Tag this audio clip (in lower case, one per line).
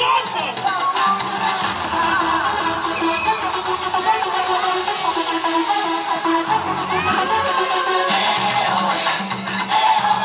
music
electronica